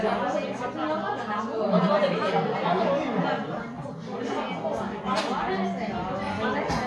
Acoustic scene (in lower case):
crowded indoor space